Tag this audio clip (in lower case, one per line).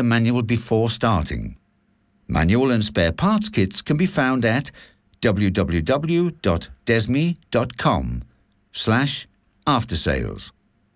speech